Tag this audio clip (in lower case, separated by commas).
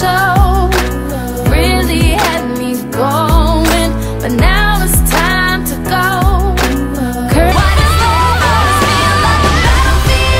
music, exciting music